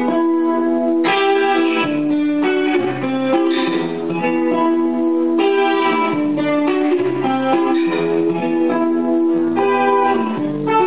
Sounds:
strum
guitar
plucked string instrument
music
musical instrument

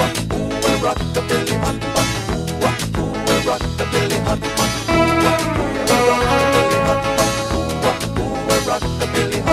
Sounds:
music

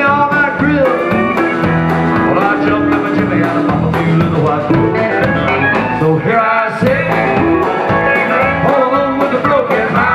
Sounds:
music

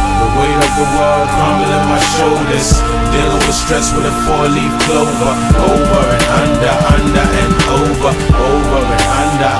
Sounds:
music

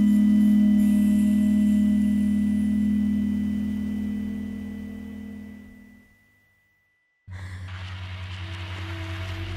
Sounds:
inside a small room
music

